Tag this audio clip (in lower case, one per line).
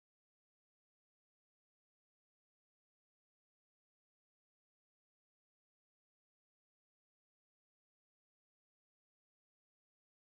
chimpanzee pant-hooting